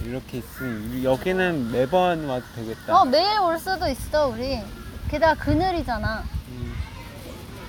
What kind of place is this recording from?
park